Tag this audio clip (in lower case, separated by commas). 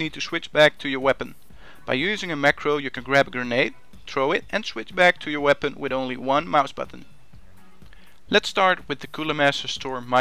music, speech